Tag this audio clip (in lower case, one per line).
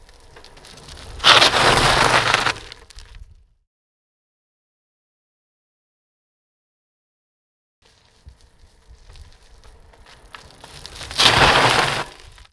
vehicle
bicycle